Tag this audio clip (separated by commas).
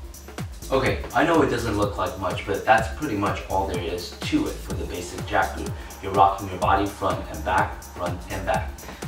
Music, Speech, House music